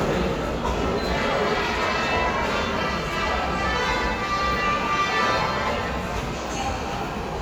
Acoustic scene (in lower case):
subway station